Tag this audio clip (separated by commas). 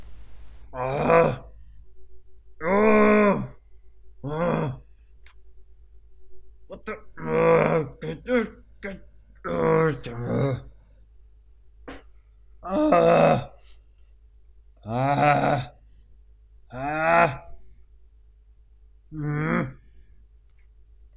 Human voice